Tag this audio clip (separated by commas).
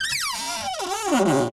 Cupboard open or close, Domestic sounds